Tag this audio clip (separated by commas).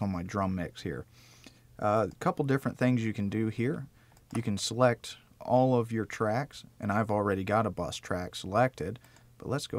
Speech